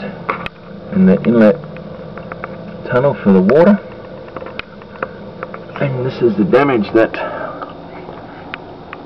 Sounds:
speech

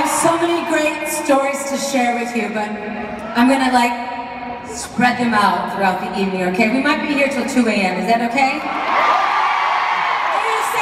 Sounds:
woman speaking
speech
narration

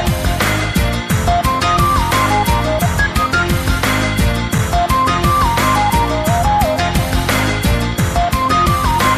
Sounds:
music
rhythm and blues

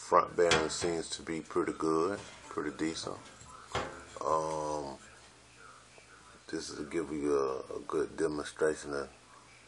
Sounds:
speech

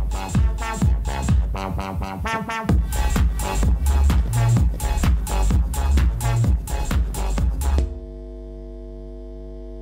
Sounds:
music

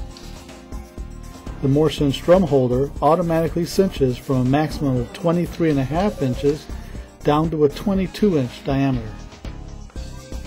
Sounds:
music
speech
musical instrument

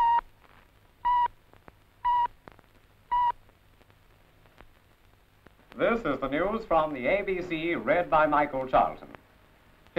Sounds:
speech

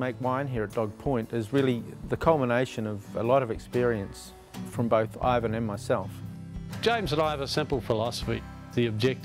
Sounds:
music
speech

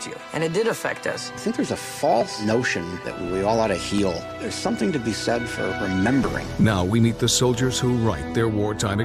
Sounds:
speech
music

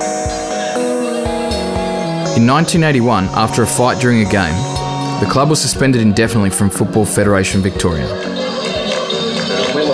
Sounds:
speech
music

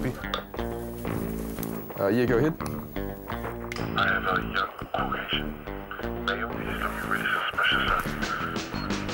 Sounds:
speech
radio
music

